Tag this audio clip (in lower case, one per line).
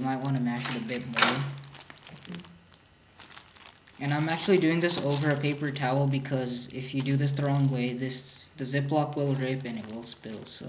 speech